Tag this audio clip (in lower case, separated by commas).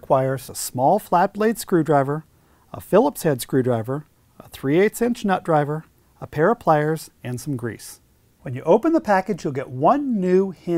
speech